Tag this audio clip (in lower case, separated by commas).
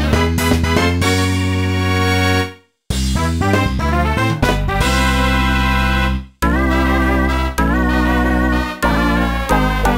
music, background music